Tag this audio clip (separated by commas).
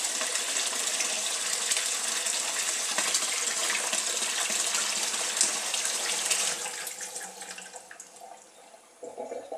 faucet, Bathtub (filling or washing), Water, Sink (filling or washing)